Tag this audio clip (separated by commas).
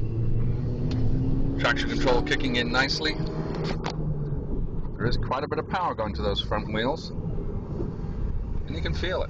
Speech, Vehicle, Car